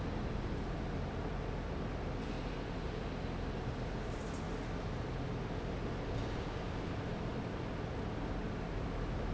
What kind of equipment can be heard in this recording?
fan